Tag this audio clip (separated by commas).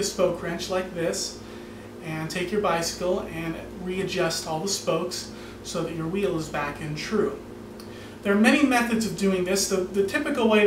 Speech